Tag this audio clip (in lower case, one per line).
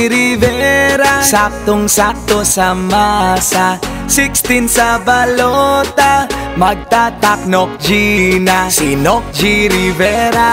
music